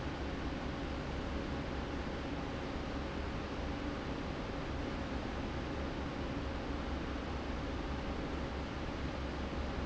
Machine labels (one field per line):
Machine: fan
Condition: normal